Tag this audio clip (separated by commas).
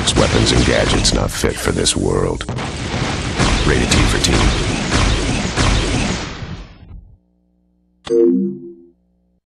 Speech, Music